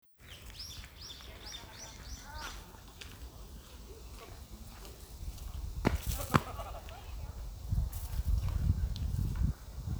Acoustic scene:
park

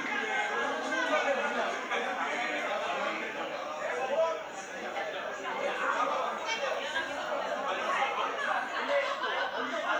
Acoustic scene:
restaurant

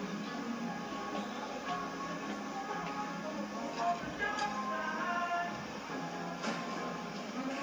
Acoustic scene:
cafe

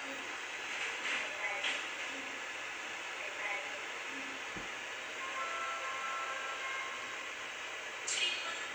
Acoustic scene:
subway train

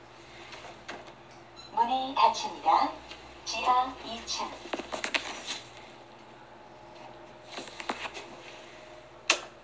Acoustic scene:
elevator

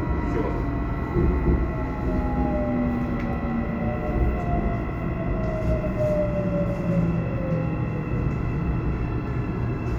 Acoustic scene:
subway train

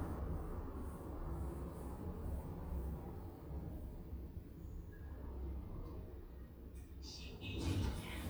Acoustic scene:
elevator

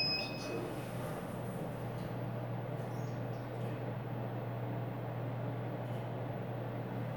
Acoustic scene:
elevator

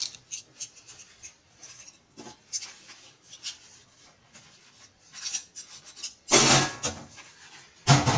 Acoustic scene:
kitchen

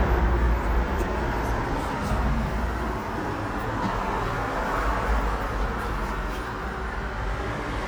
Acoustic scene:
elevator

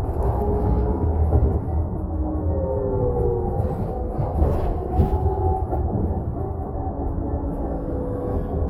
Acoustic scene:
bus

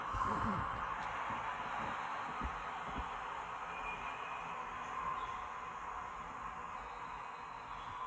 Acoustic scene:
park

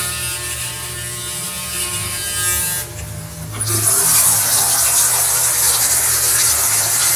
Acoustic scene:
restroom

